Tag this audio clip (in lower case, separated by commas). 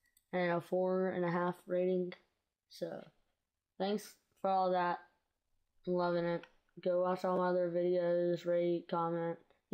speech